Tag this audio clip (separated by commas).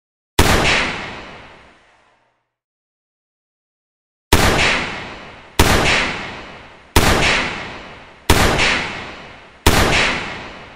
Gunshot